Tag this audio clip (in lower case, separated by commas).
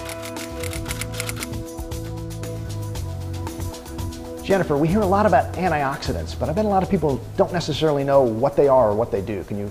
music, speech, inside a small room